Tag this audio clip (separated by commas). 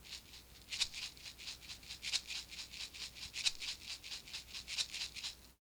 Music, Percussion, Rattle (instrument), Musical instrument